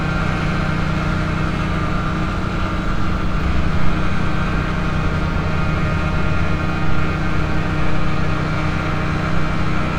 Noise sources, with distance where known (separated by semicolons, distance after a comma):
engine of unclear size, near